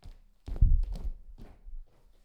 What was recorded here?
footsteps